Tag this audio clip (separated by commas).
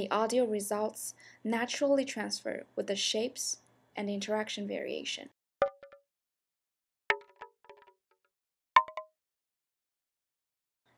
Speech